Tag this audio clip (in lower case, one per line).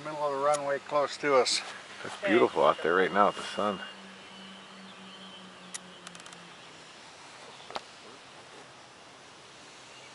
speech
outside, rural or natural